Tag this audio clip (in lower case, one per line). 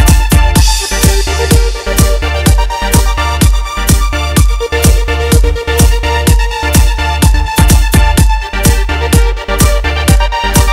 music
dance music
house music